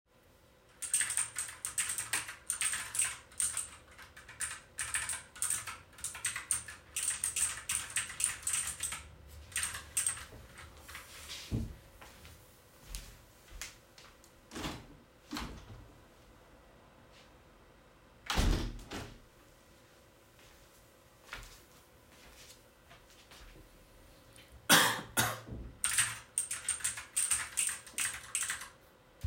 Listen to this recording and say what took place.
I was typing on my keyboard, when I heard something outside. I walked to the window and opened it to hear the noise, but nothing was there, so I closed the window. I walked back to my desk, coughed and continued typing.